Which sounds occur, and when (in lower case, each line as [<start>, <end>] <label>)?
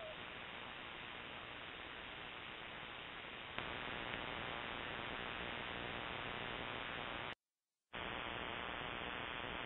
[0.00, 7.36] noise
[7.93, 9.65] noise